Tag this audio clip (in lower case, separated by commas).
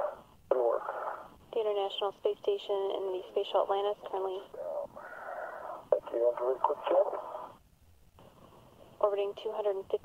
speech